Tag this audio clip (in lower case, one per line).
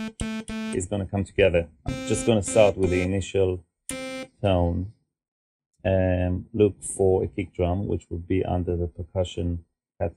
speech